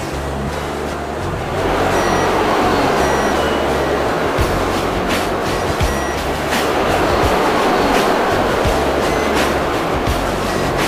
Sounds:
music

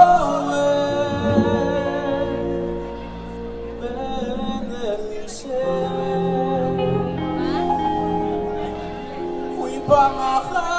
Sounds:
music
speech

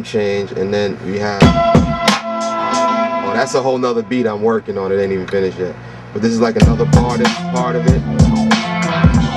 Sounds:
music
speech

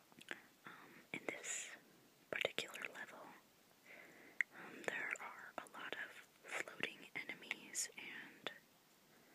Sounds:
whispering

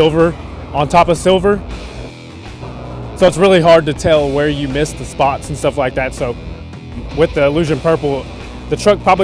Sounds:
speech
music

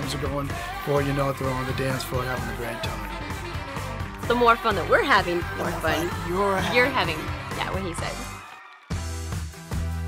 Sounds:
speech
pop music
music

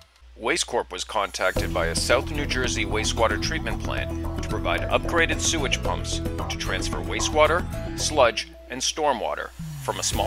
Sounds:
music
speech

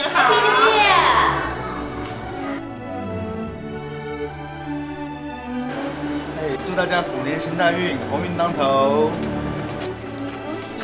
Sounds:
speech
music

